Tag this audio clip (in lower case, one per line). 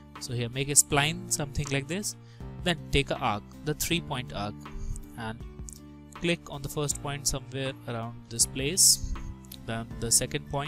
music
speech